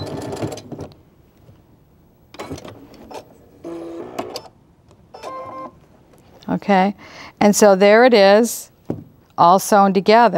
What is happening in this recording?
Sewing machine ending with beeping and female voice